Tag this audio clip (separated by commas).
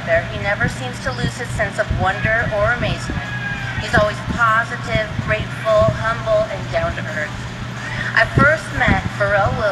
Speech